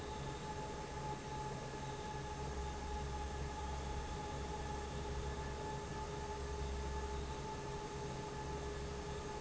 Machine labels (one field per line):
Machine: fan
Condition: normal